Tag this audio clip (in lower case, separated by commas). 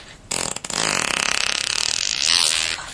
fart